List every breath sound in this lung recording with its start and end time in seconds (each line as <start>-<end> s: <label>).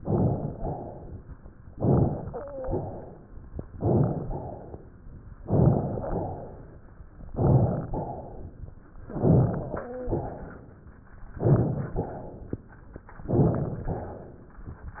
0.00-0.59 s: inhalation
0.59-1.24 s: exhalation
1.73-2.39 s: inhalation
2.24-2.85 s: wheeze
2.64-3.46 s: exhalation
3.72-4.23 s: inhalation
4.27-5.09 s: exhalation
5.46-6.07 s: inhalation
6.09-6.91 s: exhalation
7.30-7.91 s: inhalation
7.97-8.79 s: exhalation
9.09-9.79 s: inhalation
9.77-10.46 s: wheeze
10.11-10.93 s: exhalation
11.36-12.01 s: inhalation
11.99-12.58 s: exhalation
13.24-13.89 s: inhalation
13.98-14.67 s: exhalation